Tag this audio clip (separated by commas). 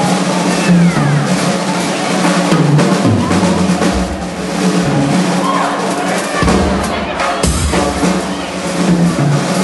Musical instrument, Drum, Music, Drum kit